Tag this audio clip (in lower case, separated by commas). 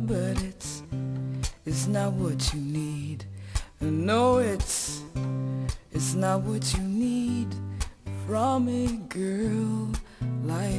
music